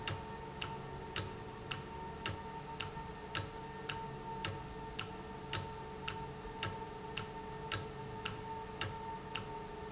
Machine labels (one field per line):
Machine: valve